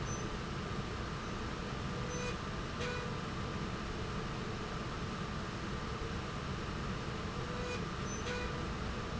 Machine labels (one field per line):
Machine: slide rail